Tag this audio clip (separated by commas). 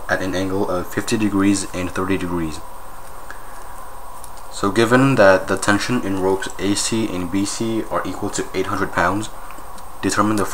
Speech